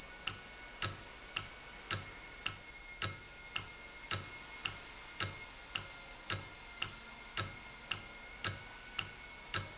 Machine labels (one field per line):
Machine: valve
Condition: normal